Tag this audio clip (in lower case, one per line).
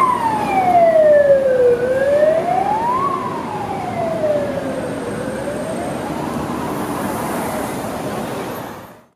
siren
emergency vehicle
police car (siren)